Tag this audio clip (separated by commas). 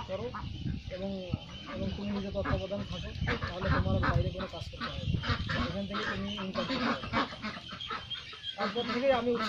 duck quacking